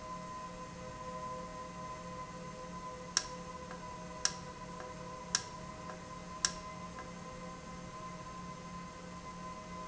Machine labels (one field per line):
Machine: valve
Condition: normal